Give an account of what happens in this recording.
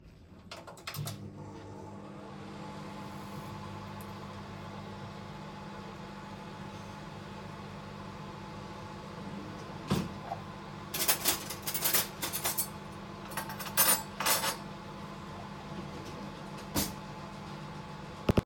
I prepared some food in my microwave. During that, I opened a drawer to get some cutlery.